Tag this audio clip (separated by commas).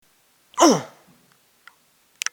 Human voice